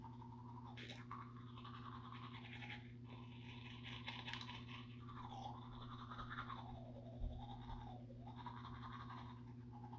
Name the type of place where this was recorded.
restroom